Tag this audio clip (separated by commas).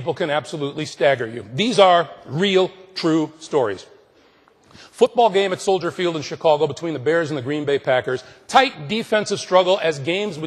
monologue, Male speech, Speech